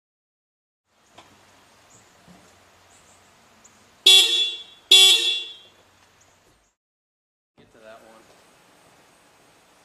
A car horn beeps three times